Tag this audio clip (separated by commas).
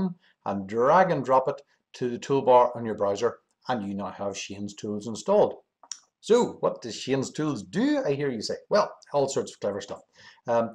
Speech